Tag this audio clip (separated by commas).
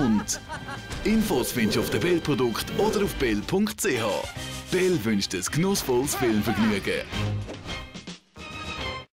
Speech, Music